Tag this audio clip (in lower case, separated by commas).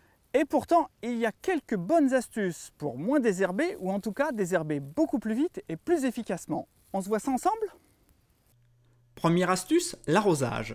speech